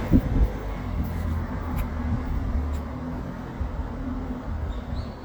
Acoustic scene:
residential area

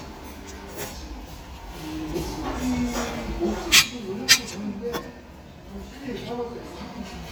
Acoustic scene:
restaurant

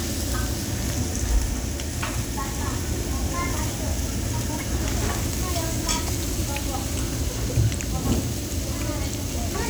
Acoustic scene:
crowded indoor space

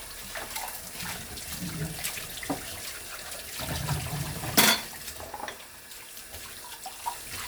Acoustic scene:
kitchen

